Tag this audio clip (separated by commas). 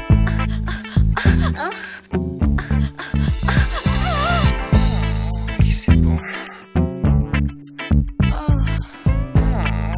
Music